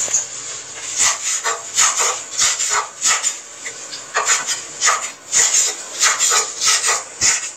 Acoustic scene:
kitchen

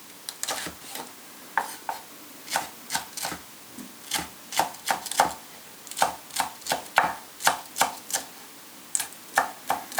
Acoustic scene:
kitchen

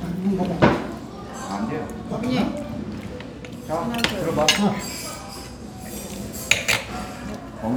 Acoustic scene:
restaurant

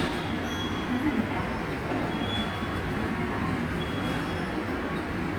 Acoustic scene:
subway station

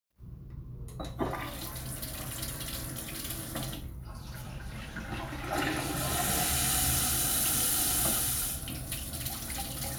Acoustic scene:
restroom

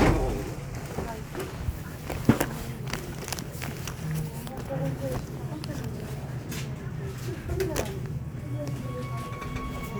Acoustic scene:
subway station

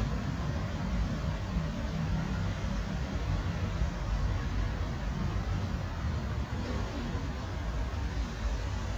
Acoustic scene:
residential area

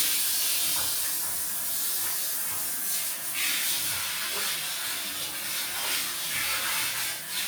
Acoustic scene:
restroom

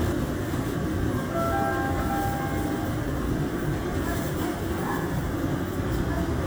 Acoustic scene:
subway train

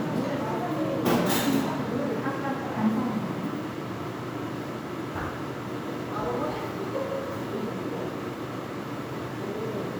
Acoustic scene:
crowded indoor space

